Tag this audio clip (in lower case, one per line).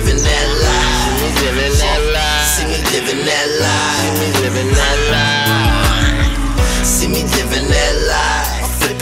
background music
soundtrack music
music